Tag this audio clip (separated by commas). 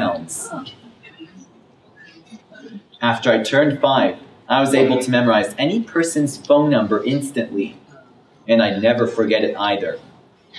Speech